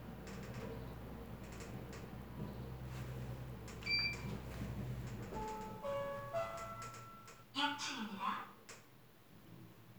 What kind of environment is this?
elevator